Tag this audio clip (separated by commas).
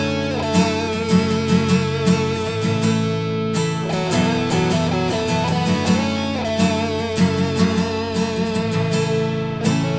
Musical instrument, Music